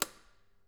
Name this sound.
switch being turned off